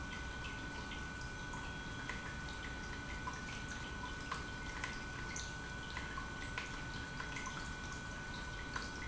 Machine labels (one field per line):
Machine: pump